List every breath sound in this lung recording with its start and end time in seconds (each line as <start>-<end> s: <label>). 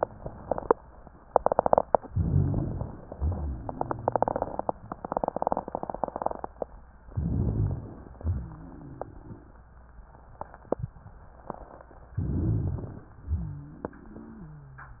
2.11-3.04 s: inhalation
2.11-3.04 s: rhonchi
3.15-4.21 s: exhalation
3.15-4.21 s: rhonchi
7.10-8.16 s: inhalation
7.10-8.16 s: rhonchi
8.22-9.45 s: exhalation
8.22-9.45 s: rhonchi
12.18-13.11 s: inhalation
12.18-13.11 s: rhonchi
13.26-14.44 s: exhalation
13.26-15.00 s: rhonchi